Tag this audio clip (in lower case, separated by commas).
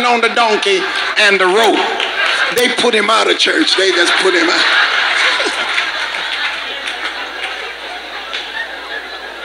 speech, inside a large room or hall